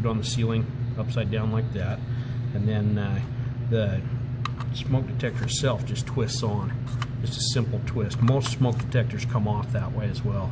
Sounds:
speech

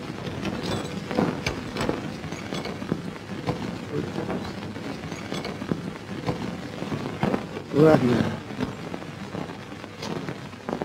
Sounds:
speech

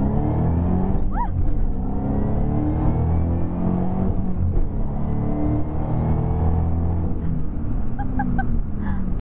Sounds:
car
vehicle
motor vehicle (road)

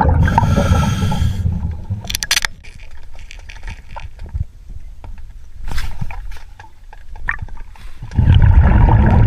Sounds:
scuba diving

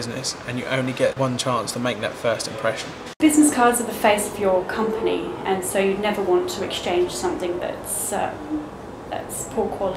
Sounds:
speech

